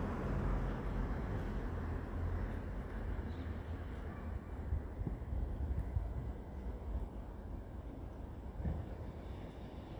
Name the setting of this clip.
residential area